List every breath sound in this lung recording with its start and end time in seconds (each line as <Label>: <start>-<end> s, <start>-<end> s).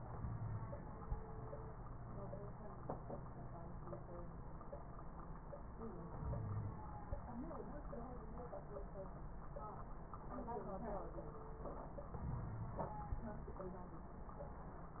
Inhalation: 6.19-6.83 s, 12.21-12.85 s
Wheeze: 0.14-0.78 s, 6.19-6.83 s, 12.21-12.85 s